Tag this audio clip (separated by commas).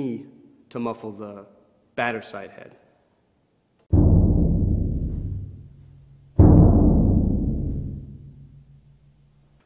Bass drum, Speech